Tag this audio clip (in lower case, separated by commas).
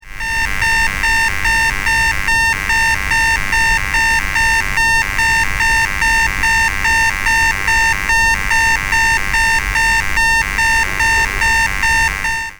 alarm